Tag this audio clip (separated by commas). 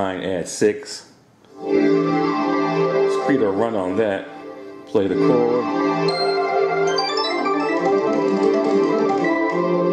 Electronic organ, Music, Musical instrument, Piano, Keyboard (musical)